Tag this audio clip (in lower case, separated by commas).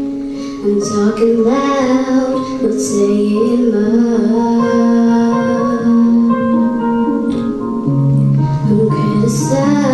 music, female singing